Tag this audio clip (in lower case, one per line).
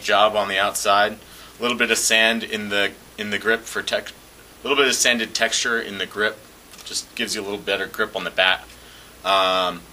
speech